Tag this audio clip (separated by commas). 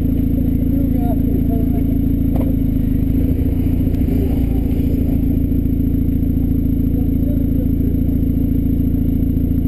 Speech